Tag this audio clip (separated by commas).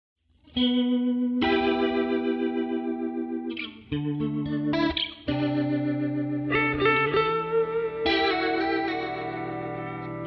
Guitar, Music